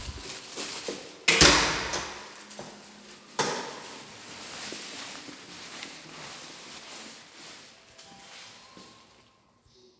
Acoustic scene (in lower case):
elevator